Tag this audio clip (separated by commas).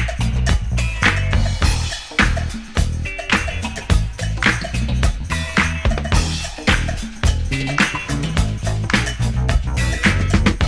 Funk, Music